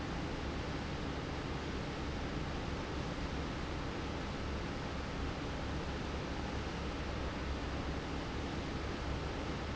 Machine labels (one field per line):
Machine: fan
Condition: normal